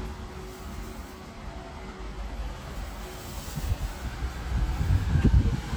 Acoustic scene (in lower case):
residential area